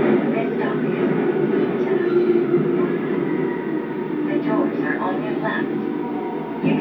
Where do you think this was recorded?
on a subway train